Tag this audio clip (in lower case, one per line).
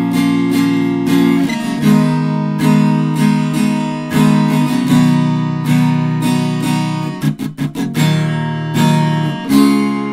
strum
plucked string instrument
acoustic guitar
music
musical instrument